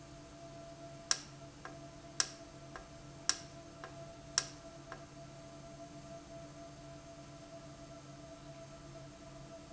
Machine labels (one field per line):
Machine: valve